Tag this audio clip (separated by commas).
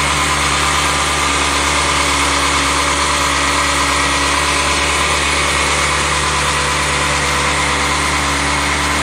Vehicle, Engine